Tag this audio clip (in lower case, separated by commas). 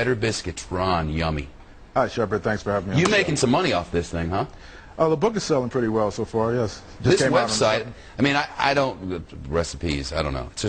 speech